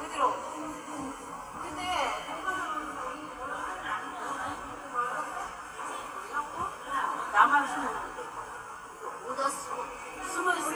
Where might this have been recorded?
in a subway station